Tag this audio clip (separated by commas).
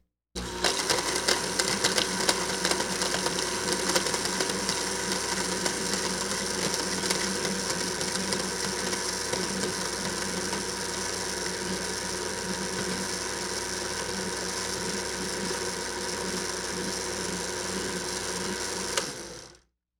Domestic sounds